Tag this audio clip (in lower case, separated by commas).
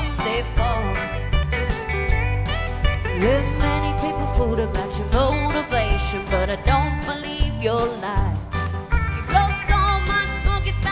music